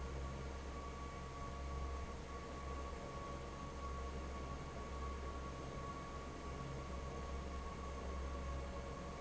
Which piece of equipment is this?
fan